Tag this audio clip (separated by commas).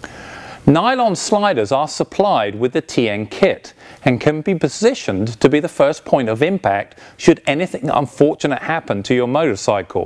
Speech